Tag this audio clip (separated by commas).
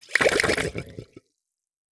Gurgling, Water